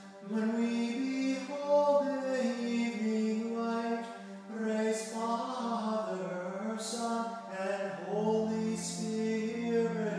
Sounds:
Music

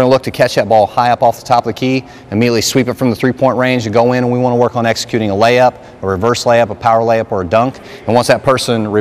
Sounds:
Speech

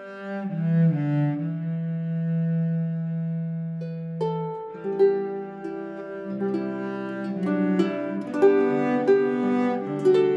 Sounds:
Music, Musical instrument, Cello

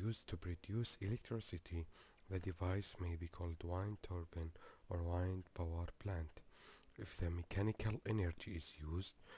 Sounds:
Speech

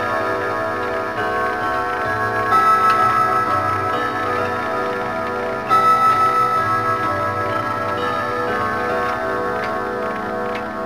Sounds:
Tick-tock, Music

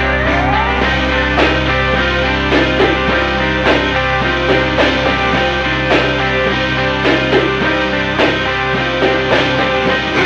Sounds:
Music

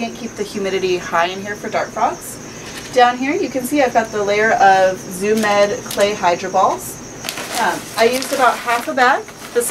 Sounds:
Speech

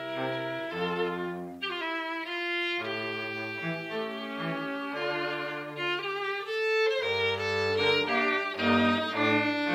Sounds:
Soul music, Music

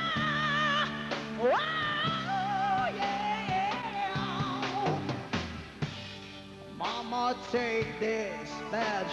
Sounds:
Music

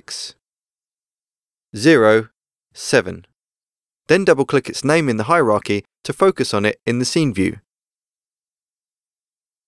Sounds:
Speech

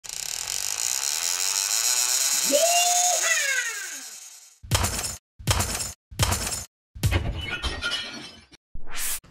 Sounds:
Speech

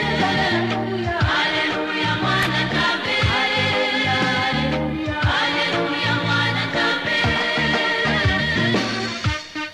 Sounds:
Music, Gospel music

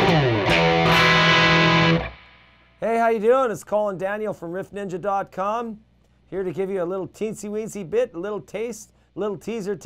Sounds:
Musical instrument, Guitar, Electric guitar, Music, Strum, Speech

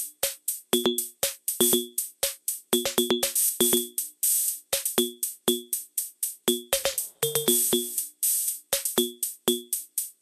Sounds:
Music

